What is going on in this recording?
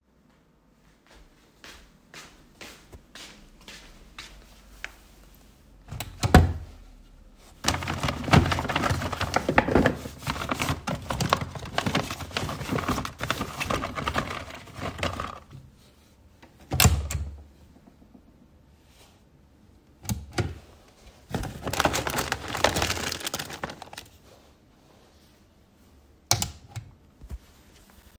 I walked to the wardrobe and opened the top drawer to search for something. I rummaged through the drawer and then closed it. I then opened a second drawer took something out and closed it again.